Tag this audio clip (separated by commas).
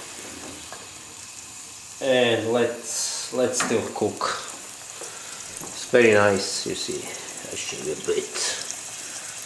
Speech, Boiling, inside a small room